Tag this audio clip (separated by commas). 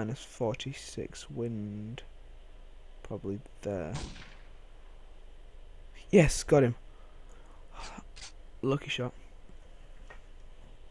Speech